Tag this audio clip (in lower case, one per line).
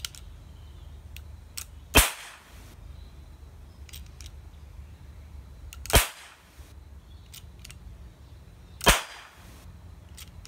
cap gun shooting